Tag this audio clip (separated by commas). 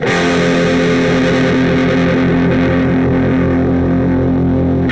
Guitar, Electric guitar, Music, Plucked string instrument, Musical instrument